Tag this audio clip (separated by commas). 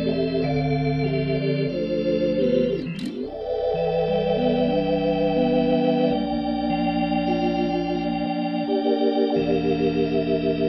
Harmonic, Music